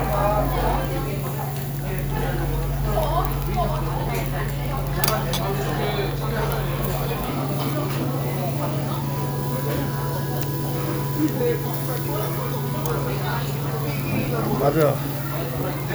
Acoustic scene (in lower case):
restaurant